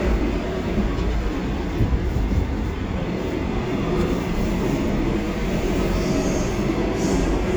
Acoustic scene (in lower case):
subway train